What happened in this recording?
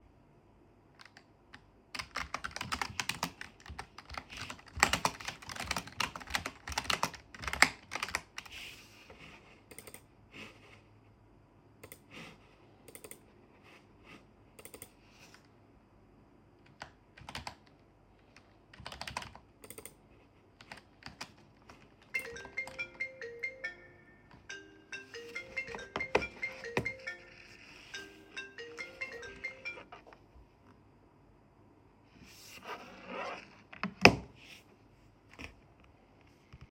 I was typing on a keyboard when phone rang, took a phone, answered, put it on table